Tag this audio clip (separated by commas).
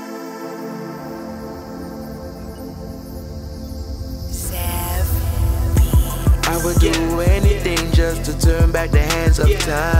Music